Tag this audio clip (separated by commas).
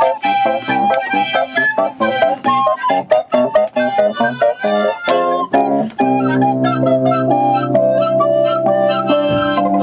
Music